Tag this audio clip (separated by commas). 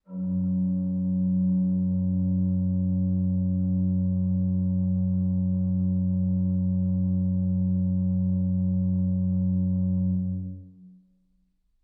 Keyboard (musical), Organ, Musical instrument, Music